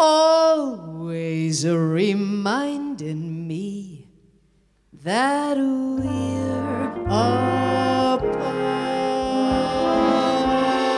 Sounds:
Music

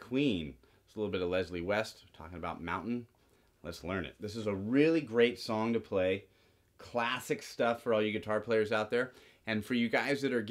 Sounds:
Speech

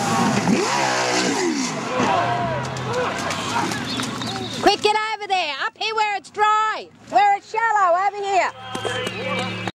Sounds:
Vehicle, Boat, Speech, Motorboat

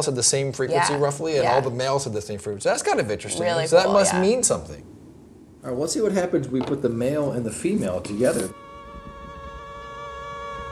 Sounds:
mosquito buzzing

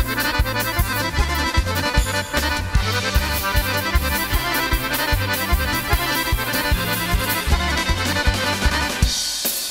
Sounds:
Music

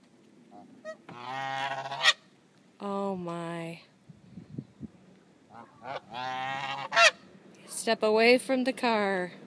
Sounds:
Honk, Fowl, Goose

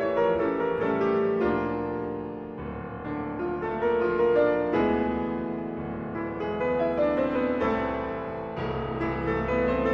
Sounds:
Piano

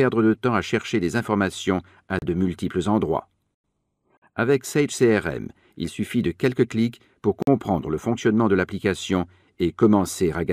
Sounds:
Speech

